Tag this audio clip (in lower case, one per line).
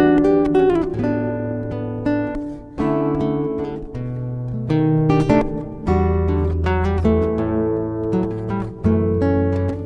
acoustic guitar
guitar
plucked string instrument
musical instrument
strum
music